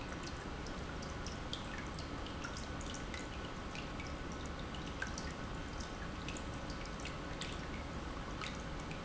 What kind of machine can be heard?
pump